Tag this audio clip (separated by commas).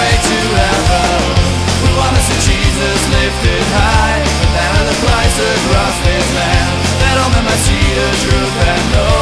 Music, Punk rock